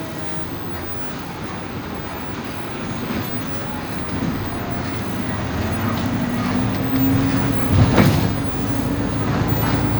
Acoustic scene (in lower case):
bus